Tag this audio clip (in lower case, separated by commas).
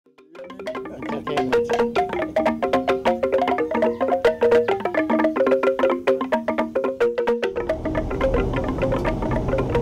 percussion, wood block